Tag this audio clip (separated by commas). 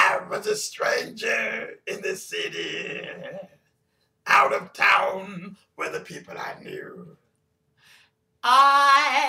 Male singing